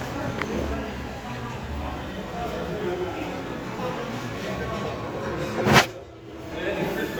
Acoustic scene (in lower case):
crowded indoor space